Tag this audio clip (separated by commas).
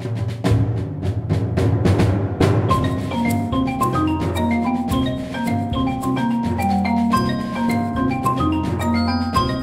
Music, playing vibraphone, Vibraphone, Timpani